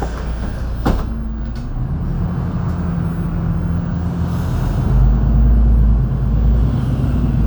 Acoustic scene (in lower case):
bus